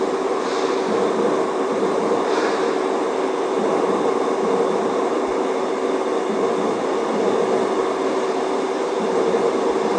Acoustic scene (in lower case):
subway station